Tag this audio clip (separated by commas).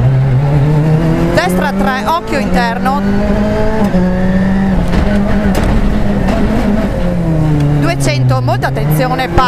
Vehicle, Car, Speech